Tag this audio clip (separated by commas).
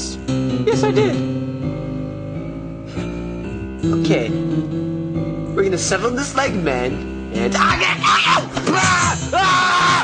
Music, Speech